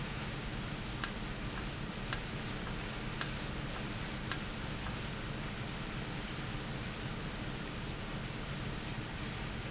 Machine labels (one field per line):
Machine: valve